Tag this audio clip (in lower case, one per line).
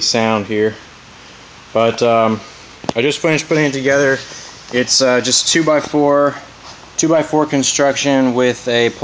speech